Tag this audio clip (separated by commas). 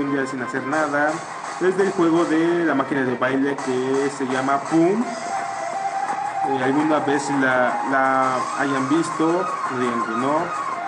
Music, Speech